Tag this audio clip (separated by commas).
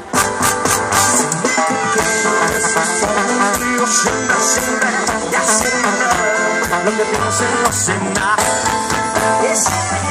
Music